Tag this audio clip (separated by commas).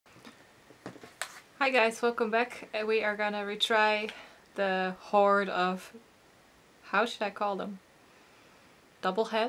Speech, inside a small room